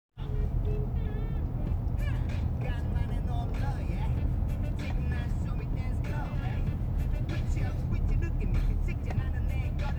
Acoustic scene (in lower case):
car